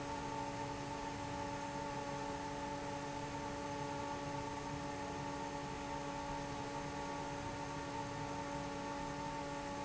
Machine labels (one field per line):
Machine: fan